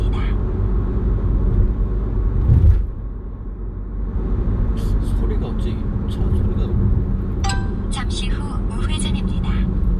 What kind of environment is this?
car